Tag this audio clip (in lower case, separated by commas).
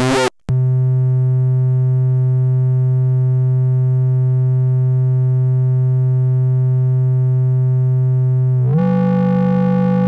playing synthesizer, musical instrument, synthesizer, music